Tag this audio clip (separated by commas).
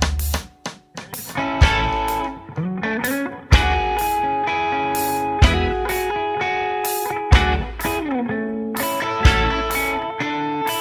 Electric guitar, Music